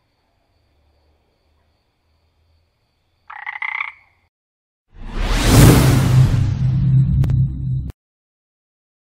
A frog croaks and a whoosh goes off